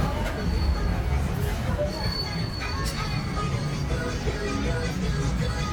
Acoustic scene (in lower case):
street